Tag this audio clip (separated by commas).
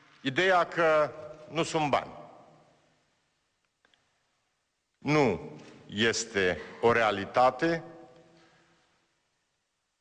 Speech